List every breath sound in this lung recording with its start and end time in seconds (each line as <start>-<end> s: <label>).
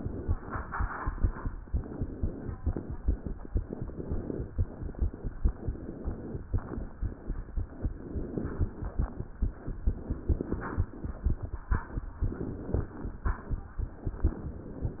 1.69-2.56 s: inhalation
2.56-3.36 s: exhalation
3.57-4.52 s: inhalation
4.52-5.31 s: exhalation
5.48-6.45 s: inhalation
6.45-7.23 s: exhalation
7.91-8.92 s: inhalation
9.87-10.87 s: inhalation
12.28-13.28 s: inhalation
14.08-15.00 s: inhalation